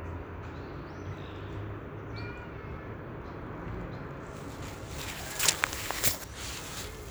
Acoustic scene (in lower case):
park